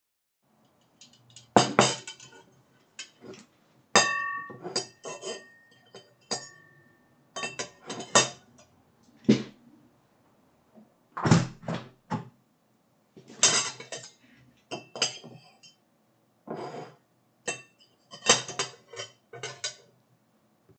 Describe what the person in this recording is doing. I was eating food and I opened my window to get some fresh air, then I continued eating.